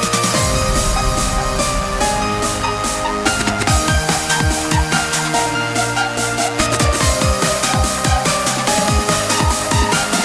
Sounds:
music

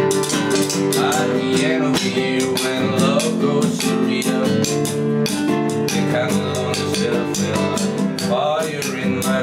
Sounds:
music

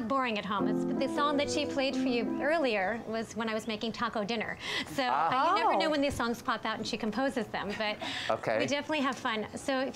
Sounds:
tender music, music, speech

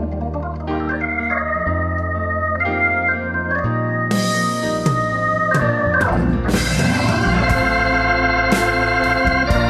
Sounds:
hammond organ, organ, playing hammond organ

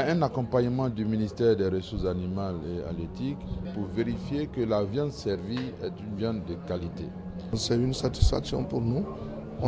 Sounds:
speech

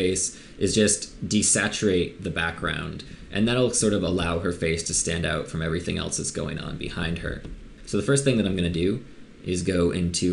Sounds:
speech

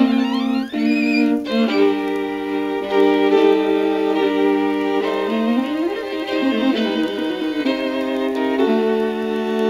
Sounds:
fiddle, cello, bowed string instrument

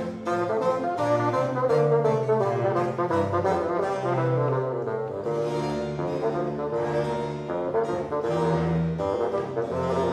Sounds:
playing bassoon

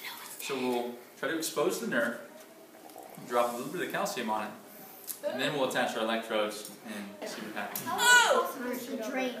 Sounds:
speech

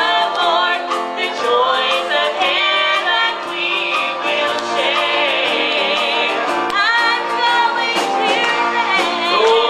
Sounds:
music

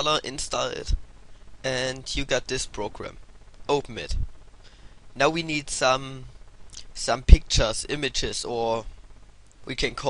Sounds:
speech

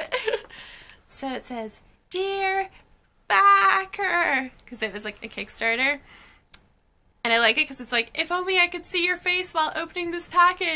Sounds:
speech

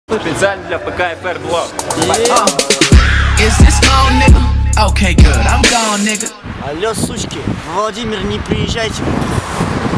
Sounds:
music, traffic noise, speech

